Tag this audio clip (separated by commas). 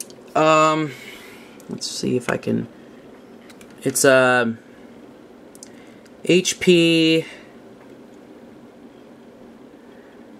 Speech